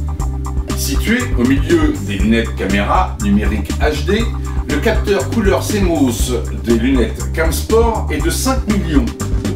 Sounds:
Speech, Music

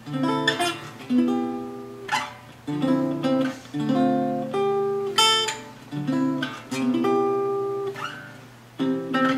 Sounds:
Music

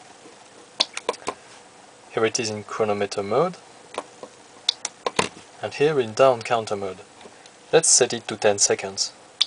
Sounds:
Speech

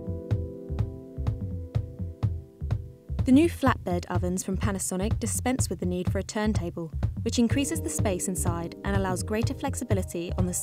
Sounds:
Music, Speech

